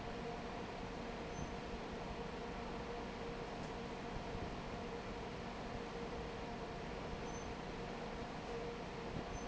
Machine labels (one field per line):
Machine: fan